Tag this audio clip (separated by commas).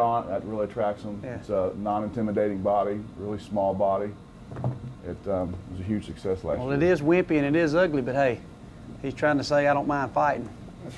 Speech